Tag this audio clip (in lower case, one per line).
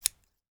home sounds
scissors